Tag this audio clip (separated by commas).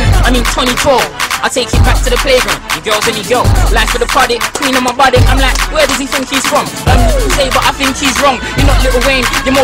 Music